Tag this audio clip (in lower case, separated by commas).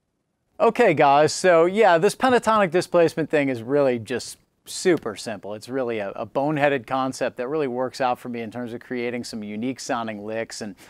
speech